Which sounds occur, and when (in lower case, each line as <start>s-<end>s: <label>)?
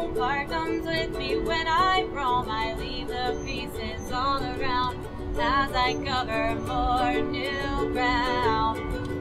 0.0s-4.9s: female singing
0.0s-9.2s: music
5.3s-9.2s: female singing